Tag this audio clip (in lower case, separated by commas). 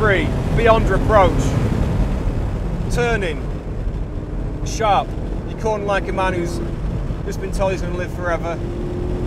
car, vehicle